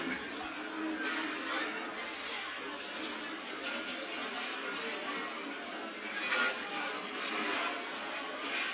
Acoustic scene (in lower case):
restaurant